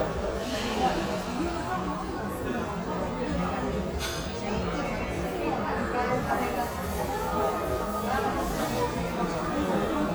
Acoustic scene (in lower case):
crowded indoor space